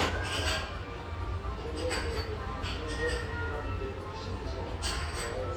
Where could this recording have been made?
in a restaurant